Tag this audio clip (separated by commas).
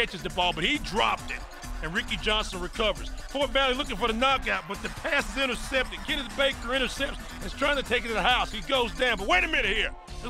Speech, Music